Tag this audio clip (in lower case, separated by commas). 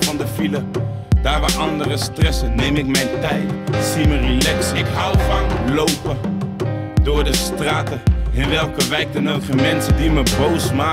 music, funk, pop music